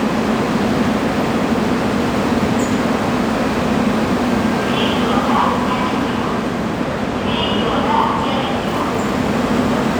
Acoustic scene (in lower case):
subway station